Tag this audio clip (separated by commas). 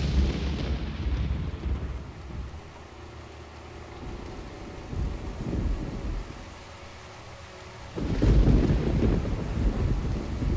outside, rural or natural